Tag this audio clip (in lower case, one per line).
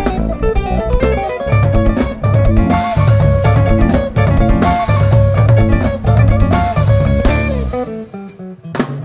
music